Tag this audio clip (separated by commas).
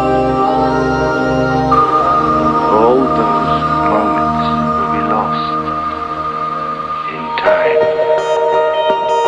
Music, Speech